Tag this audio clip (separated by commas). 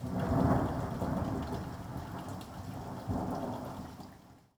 Water, Thunder, Thunderstorm, Rain